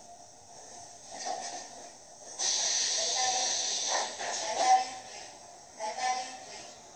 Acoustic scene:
subway train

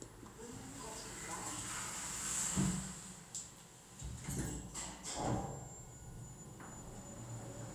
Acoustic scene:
elevator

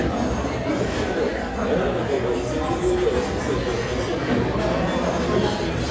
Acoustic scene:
restaurant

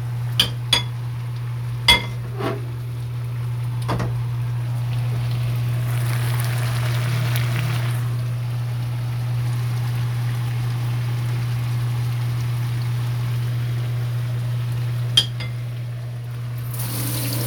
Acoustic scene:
kitchen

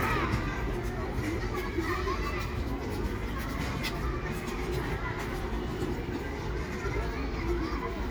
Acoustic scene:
residential area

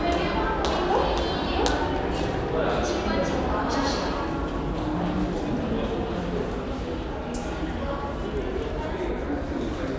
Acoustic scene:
crowded indoor space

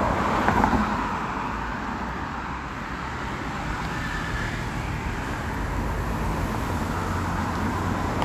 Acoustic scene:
street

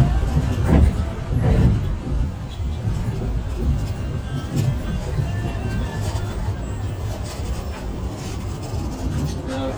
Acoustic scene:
bus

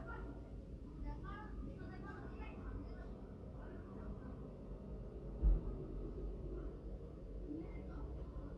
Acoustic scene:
residential area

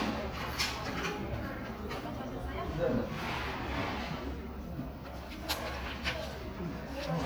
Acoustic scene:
crowded indoor space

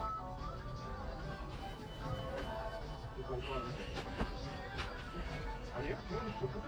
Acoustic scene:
crowded indoor space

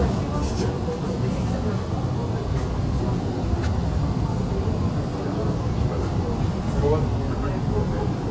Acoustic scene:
subway train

